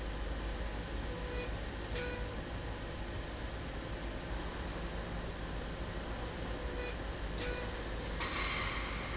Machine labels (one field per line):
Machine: slide rail